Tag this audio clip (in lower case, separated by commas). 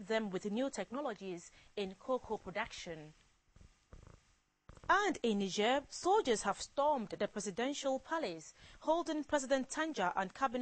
speech